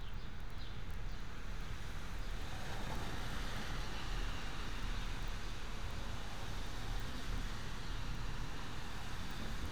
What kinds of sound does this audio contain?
background noise